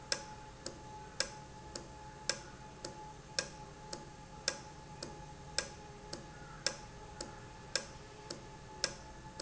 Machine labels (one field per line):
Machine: valve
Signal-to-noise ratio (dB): 6 dB